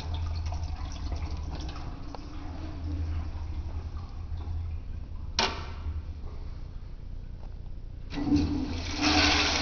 The sound of a toilet flushing and then a clacking sound